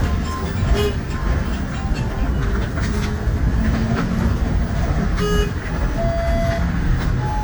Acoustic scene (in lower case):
bus